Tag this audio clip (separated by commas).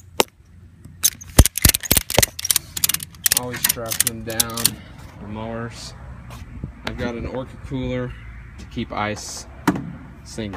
Speech